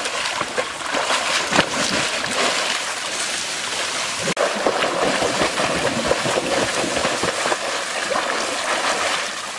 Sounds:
swimming

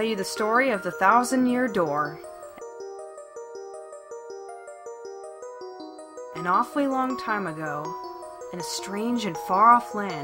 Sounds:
Music, Speech

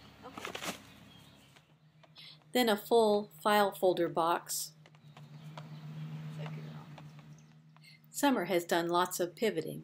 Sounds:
Speech

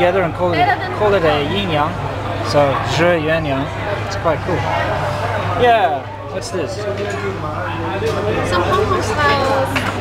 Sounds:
Speech

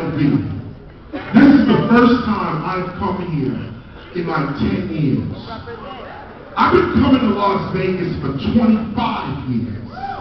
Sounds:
Speech

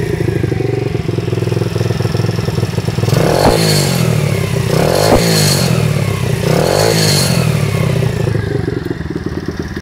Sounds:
Vibration, Vehicle, Engine, Accelerating, Medium engine (mid frequency)

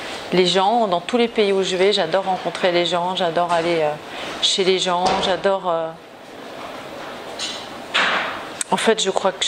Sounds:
Speech

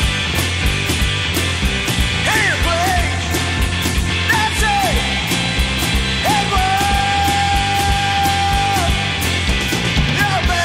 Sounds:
Psychedelic rock

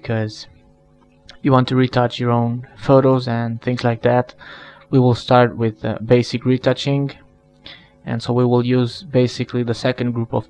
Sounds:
Speech

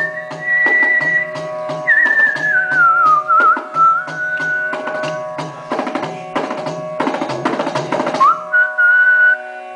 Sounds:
Carnatic music, people whistling, Music, Classical music, Whistling

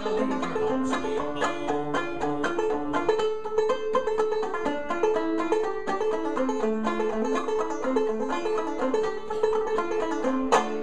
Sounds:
Musical instrument, Banjo, Music, playing banjo

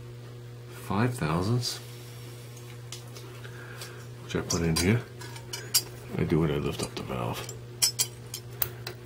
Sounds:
Speech

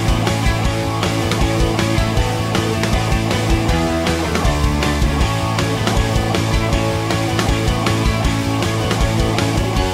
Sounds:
Music

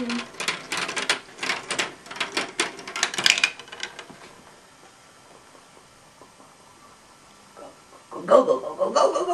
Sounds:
Speech

